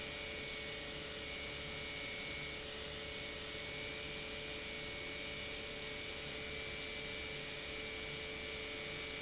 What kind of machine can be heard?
pump